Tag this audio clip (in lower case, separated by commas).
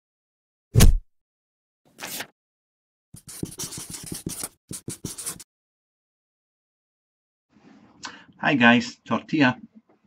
inside a small room, speech